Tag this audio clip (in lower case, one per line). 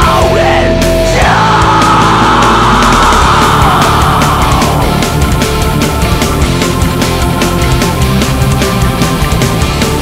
heavy metal
music
singing